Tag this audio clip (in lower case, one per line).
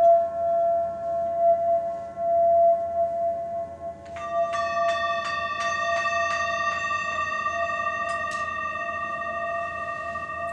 singing bowl
music